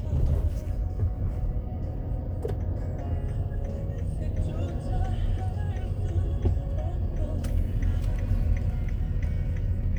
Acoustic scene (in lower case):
car